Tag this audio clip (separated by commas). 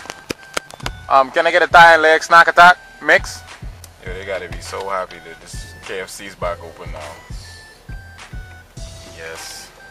Speech, Music